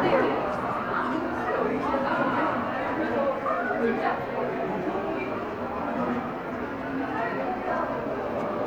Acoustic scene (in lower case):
crowded indoor space